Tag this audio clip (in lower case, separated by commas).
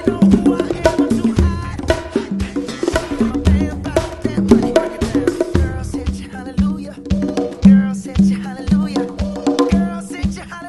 playing bongo